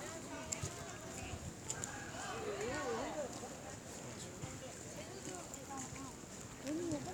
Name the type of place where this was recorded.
park